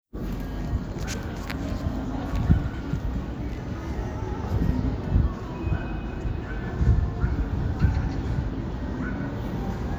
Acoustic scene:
street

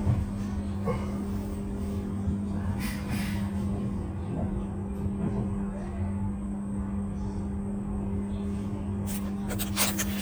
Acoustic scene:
bus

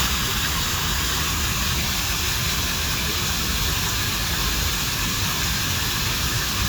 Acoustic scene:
park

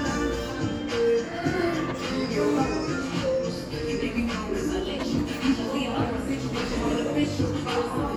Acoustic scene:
cafe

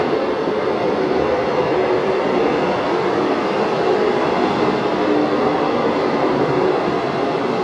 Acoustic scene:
subway station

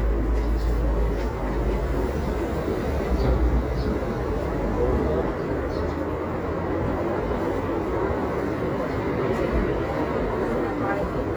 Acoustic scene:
residential area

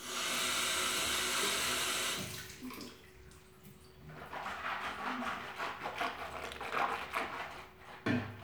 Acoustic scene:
restroom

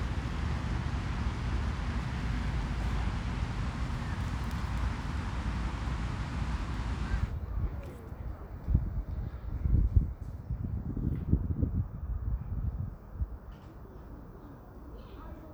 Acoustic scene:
residential area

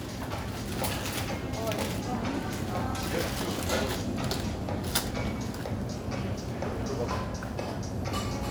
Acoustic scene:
crowded indoor space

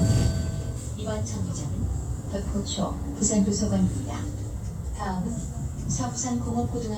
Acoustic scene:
bus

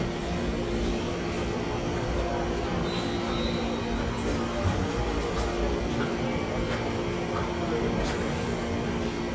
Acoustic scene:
subway station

